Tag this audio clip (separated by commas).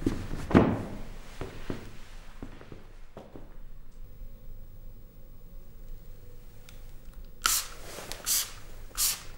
Spray